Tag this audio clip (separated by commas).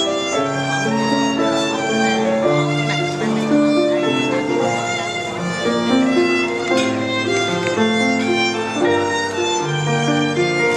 Music, Wedding music, Speech